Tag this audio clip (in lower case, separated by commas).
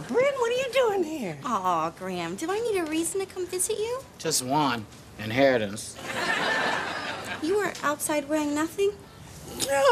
speech